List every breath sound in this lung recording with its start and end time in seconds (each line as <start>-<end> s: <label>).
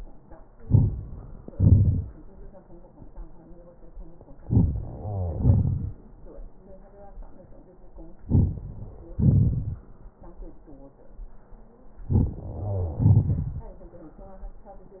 0.57-0.96 s: inhalation
1.47-2.13 s: exhalation
4.42-4.76 s: inhalation
4.82-5.40 s: wheeze
5.32-5.96 s: exhalation
8.25-8.59 s: inhalation
9.15-9.84 s: exhalation
12.12-12.36 s: inhalation
12.41-13.05 s: wheeze
12.99-13.67 s: exhalation